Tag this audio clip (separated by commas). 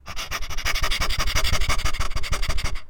Animal